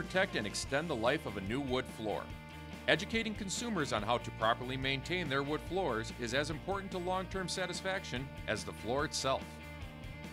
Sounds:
speech, music

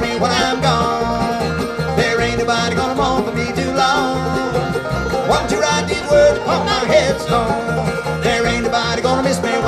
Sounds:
music, musical instrument

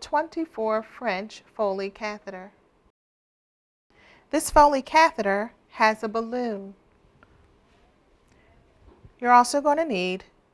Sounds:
speech

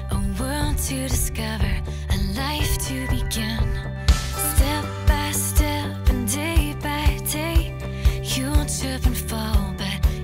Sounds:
music

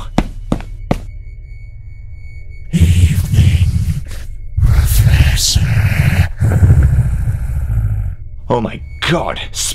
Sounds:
speech, inside a large room or hall

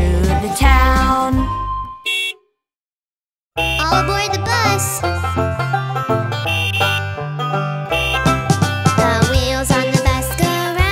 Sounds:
music, outside, urban or man-made, singing

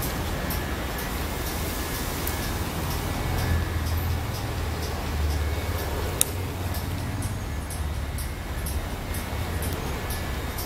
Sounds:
vehicle, music

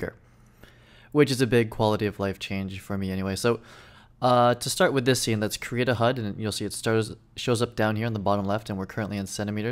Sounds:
speech

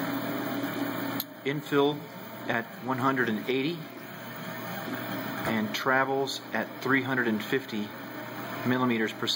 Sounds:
printer, speech

